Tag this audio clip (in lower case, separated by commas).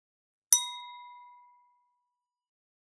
glass, chink